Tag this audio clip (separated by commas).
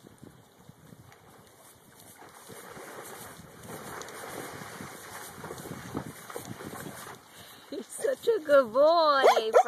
Animal, Speech